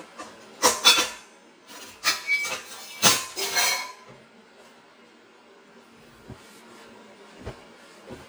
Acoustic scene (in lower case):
kitchen